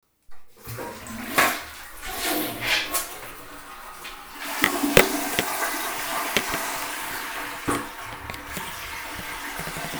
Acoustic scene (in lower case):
restroom